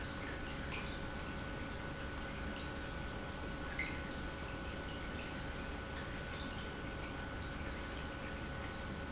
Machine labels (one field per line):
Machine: pump